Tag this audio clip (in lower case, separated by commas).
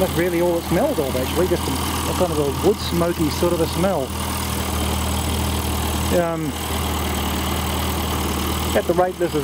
idling, engine